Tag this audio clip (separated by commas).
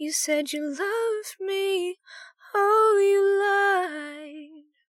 Human voice, Female singing, Singing